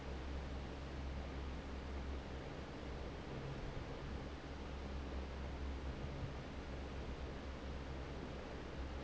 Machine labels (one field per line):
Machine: fan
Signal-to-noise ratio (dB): 6 dB